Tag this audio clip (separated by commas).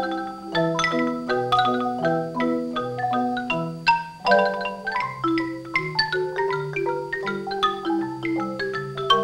Music